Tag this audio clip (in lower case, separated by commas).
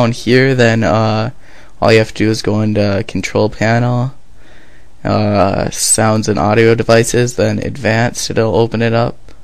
speech